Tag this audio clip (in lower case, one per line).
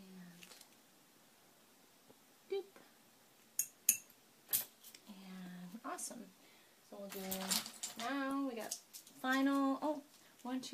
speech